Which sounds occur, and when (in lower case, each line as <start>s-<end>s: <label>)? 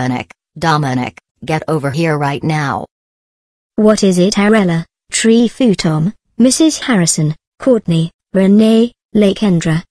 0.0s-0.3s: female speech
0.5s-1.2s: female speech
1.3s-2.8s: female speech
3.7s-4.9s: female speech
5.0s-6.1s: female speech
6.2s-7.4s: female speech
7.5s-8.1s: female speech
8.3s-8.9s: female speech
9.1s-9.8s: female speech